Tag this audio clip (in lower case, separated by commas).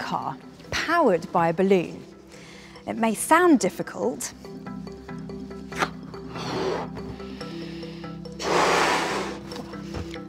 speech, music